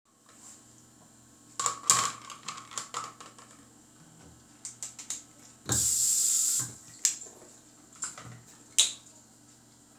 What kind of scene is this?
restroom